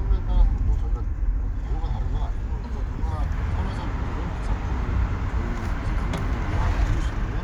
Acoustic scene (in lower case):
car